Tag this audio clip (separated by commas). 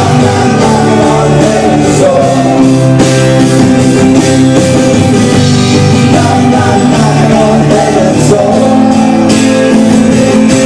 Music